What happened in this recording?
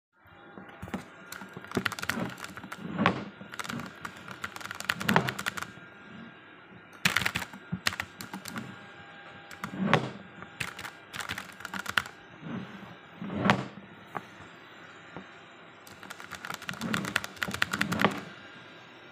I was typing a message to my friend on PC while looking for my pen in the table drawers. While all this unfolded vacuum_cleaner entered my bedroom and initiated the cleaning process.